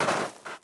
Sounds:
Walk

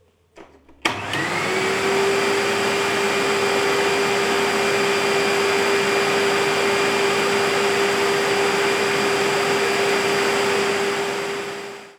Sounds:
home sounds

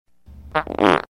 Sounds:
Fart

